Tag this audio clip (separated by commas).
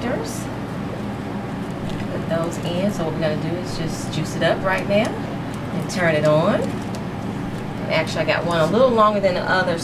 Speech